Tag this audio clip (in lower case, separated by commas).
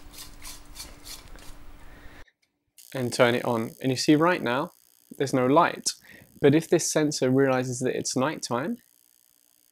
speech